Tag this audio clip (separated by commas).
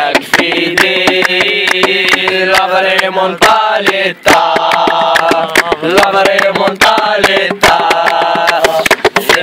Music